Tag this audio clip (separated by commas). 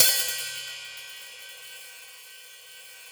Music, Percussion, Hi-hat, Cymbal, Musical instrument